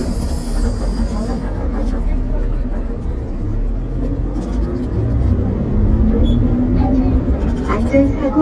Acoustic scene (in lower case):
bus